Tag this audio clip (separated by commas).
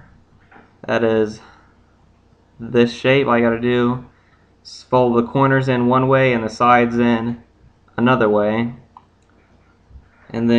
Speech